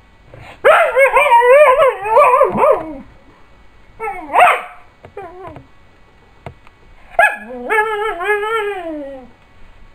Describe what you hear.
Dog whimpering and barking